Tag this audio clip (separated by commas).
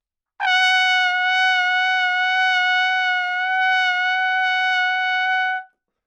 Music, Musical instrument, Brass instrument, Trumpet